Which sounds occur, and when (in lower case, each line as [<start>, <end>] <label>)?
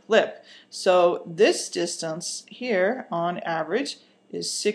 [0.00, 4.74] background noise
[0.14, 0.46] man speaking
[0.50, 0.78] breathing
[0.74, 2.51] woman speaking
[2.65, 4.10] woman speaking
[4.37, 4.74] woman speaking